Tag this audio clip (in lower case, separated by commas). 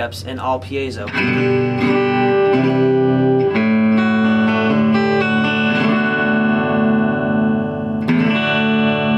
plucked string instrument, speech, electric guitar, strum, music, musical instrument, guitar